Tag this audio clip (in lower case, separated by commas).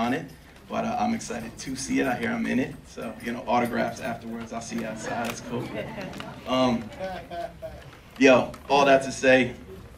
male speech, speech